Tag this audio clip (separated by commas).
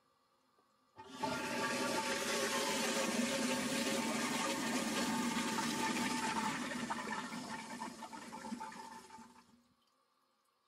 toilet flushing